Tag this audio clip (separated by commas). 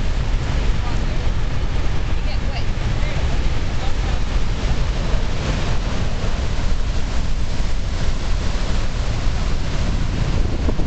Waterfall